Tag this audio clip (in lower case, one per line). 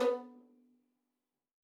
music
bowed string instrument
musical instrument